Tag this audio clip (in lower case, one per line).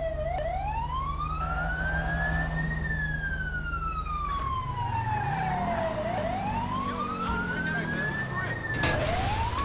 police car (siren)
emergency vehicle
siren